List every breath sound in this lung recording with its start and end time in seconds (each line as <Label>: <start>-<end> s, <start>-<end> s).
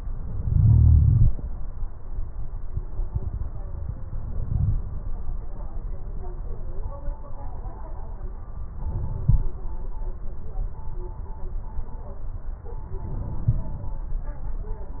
Inhalation: 4.29-4.90 s, 8.91-9.47 s, 13.08-14.03 s